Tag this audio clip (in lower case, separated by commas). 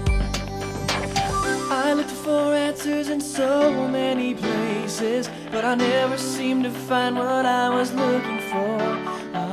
music